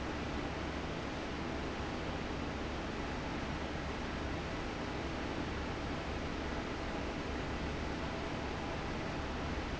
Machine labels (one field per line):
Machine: fan